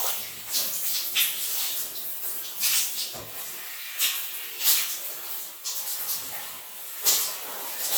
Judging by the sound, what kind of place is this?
restroom